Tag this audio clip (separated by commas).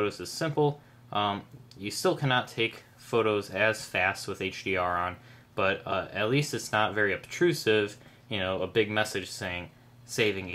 Speech